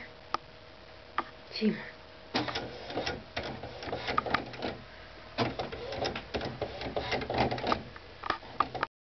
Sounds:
speech
printer

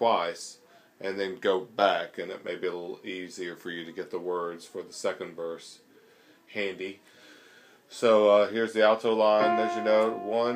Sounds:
speech
music

